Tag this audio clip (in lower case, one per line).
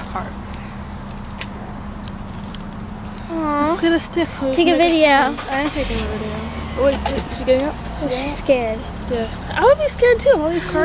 speech